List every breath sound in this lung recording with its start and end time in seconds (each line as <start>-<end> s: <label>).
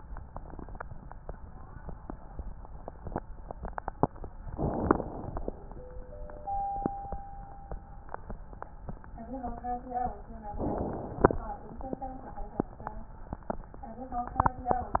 4.57-5.73 s: inhalation
10.57-11.37 s: inhalation